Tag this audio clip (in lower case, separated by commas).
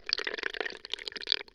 sink (filling or washing), domestic sounds